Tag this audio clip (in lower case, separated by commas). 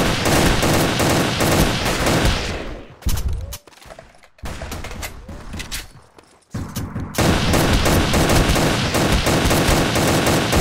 fusillade